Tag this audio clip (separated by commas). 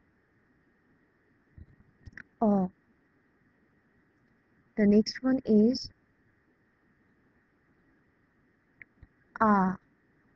Speech